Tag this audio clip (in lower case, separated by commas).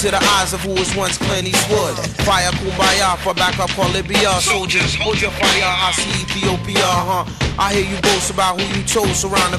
music, hip hop music